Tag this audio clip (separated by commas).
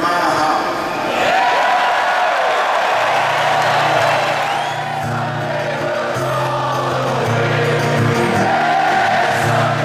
Music, Singing